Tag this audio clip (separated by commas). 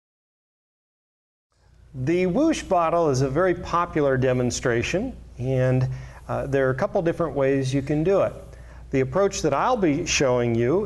Speech